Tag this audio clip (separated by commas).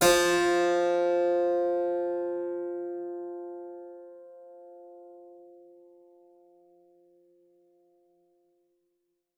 Music, Musical instrument, Keyboard (musical)